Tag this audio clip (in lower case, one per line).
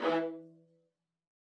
music
musical instrument
bowed string instrument